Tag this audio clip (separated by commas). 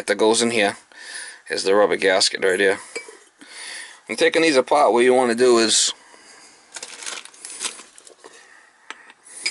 Speech